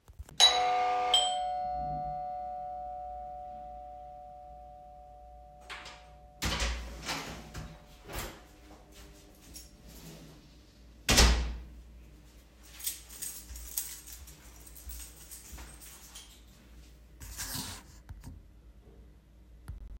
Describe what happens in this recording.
I rang the bell, open the door with key and closed it. then walked through the hallway to my room